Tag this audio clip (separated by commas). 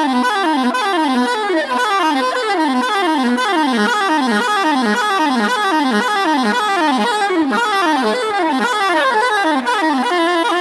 Music